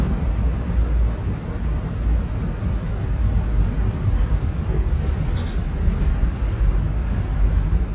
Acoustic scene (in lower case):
subway train